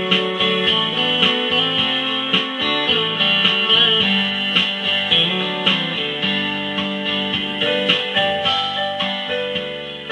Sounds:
Guitar, Plucked string instrument, Musical instrument, Music

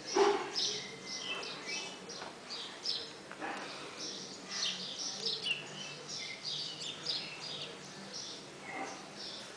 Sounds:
Animal

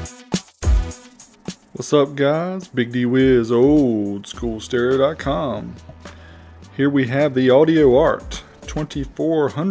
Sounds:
Music, Speech

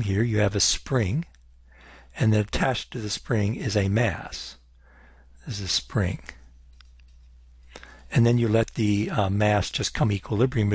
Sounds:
Speech

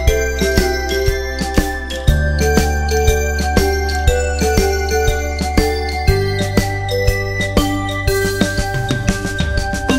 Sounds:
Jingle

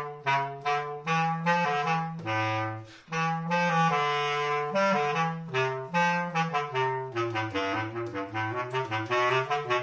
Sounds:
playing clarinet

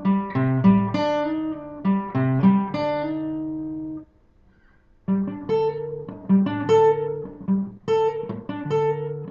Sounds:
Musical instrument, Guitar, Plucked string instrument, Music, Acoustic guitar

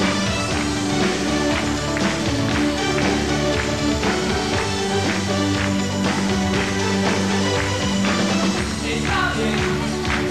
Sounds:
Music

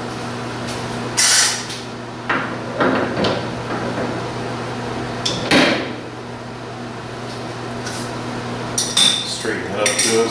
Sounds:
Tools, Speech

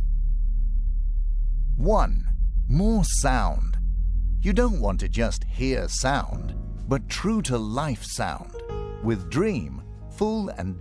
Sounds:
Music, Speech

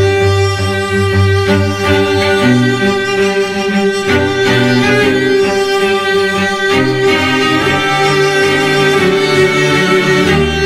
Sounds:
playing cello

